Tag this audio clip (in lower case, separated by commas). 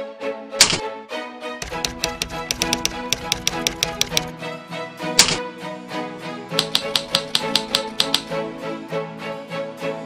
typing on typewriter